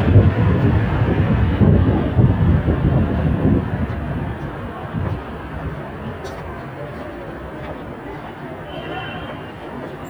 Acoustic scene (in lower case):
street